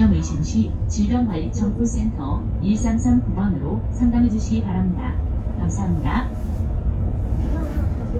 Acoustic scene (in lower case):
bus